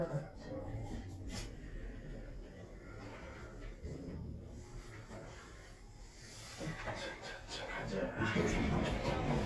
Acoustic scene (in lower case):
elevator